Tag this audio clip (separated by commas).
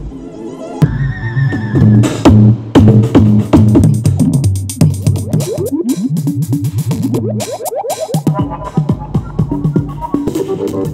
Sampler, Music